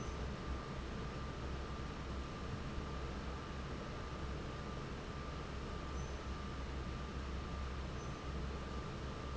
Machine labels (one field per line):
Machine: fan